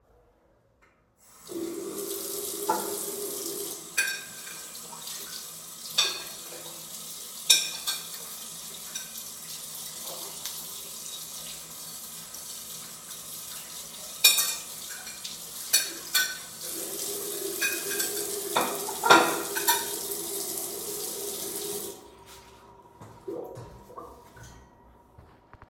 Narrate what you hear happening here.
I turned on the water and washed the dishes.